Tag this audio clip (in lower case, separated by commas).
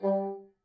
wind instrument, music, musical instrument